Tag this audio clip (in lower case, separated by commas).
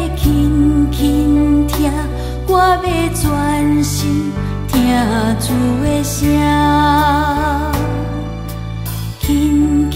christmas music, music